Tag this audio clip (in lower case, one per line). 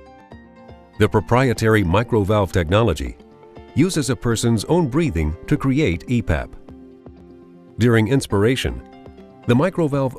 speech
music